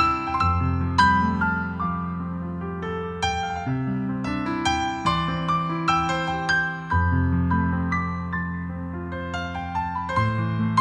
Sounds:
Music

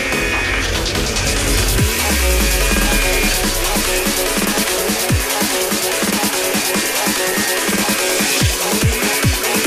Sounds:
Drum and bass, Music

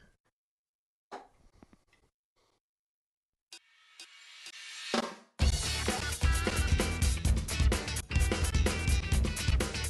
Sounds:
Musical instrument, inside a small room, Music, Drum kit, Drum

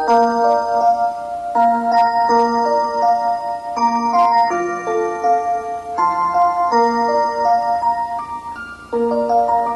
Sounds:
Music

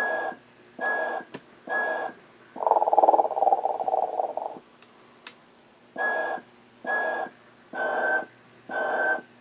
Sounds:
inside a small room

